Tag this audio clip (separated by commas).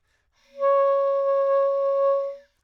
Musical instrument, Wind instrument, Music